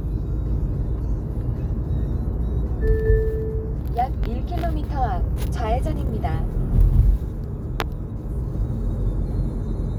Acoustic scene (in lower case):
car